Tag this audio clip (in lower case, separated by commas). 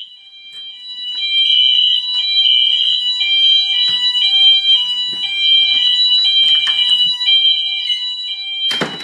fire alarm